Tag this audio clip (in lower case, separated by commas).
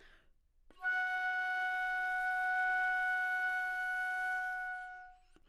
musical instrument, wind instrument, music